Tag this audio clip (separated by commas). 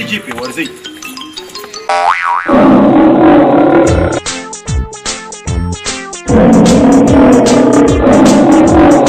Music, outside, rural or natural, Speech